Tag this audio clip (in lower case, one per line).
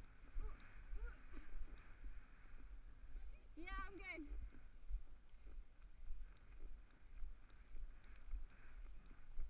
speech